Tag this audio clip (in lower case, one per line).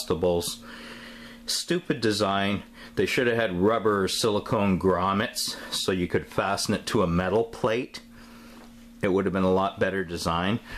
speech